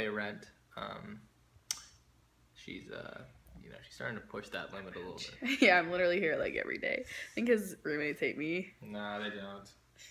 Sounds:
inside a small room, speech

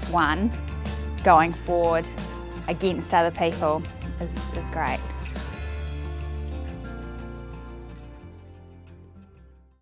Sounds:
music, speech

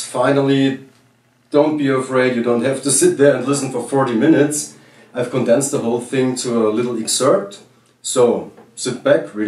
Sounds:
speech

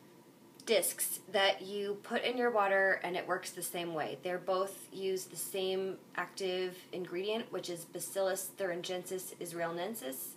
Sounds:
speech

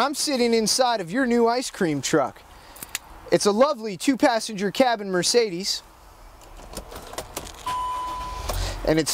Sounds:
vehicle, motor vehicle (road), speech

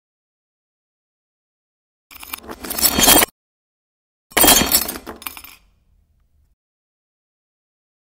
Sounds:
sound effect

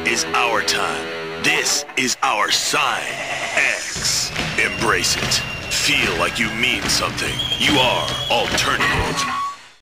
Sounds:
speech, music

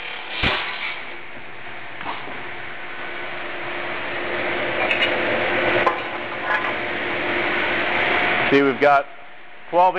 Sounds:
speech, tools

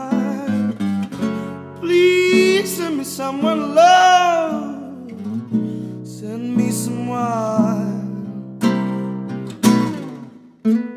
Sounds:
musical instrument, guitar, music, plucked string instrument, acoustic guitar

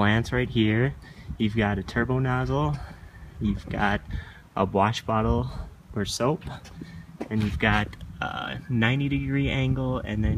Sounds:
speech

